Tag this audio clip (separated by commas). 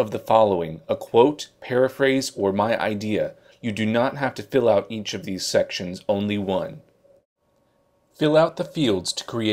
Speech